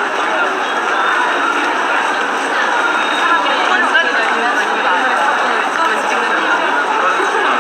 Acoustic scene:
subway station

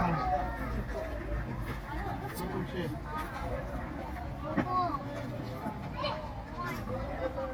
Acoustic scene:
park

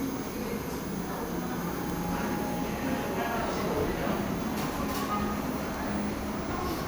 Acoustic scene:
cafe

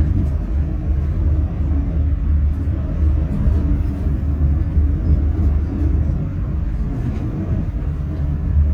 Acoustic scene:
bus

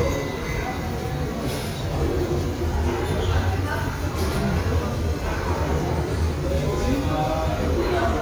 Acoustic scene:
restaurant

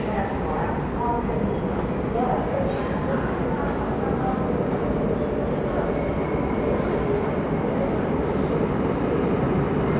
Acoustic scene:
subway station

